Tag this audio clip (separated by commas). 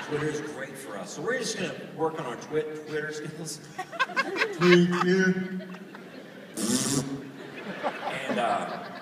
Speech